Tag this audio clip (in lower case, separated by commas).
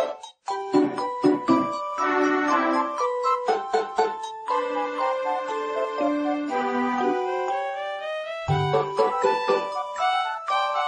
video game music, music